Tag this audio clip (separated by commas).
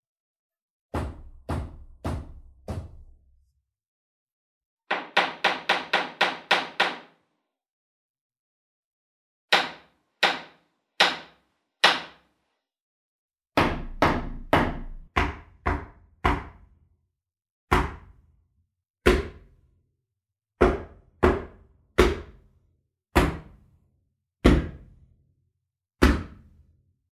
Tools, Hammer